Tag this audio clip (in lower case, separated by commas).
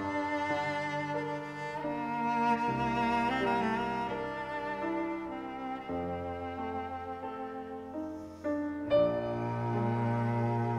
music, playing cello, piano, bowed string instrument, cello, classical music, musical instrument